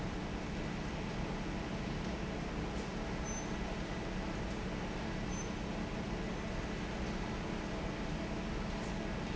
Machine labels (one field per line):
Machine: fan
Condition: normal